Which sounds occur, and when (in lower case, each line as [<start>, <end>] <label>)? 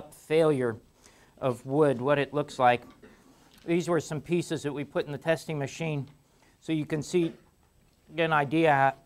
[0.01, 9.05] background noise
[0.19, 0.81] male speech
[1.42, 2.86] male speech
[3.70, 6.11] male speech
[6.66, 7.34] male speech
[8.16, 9.01] male speech